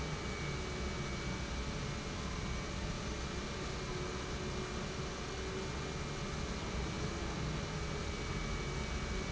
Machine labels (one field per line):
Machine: pump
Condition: normal